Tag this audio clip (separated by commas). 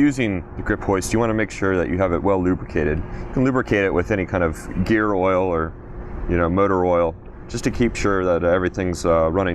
Speech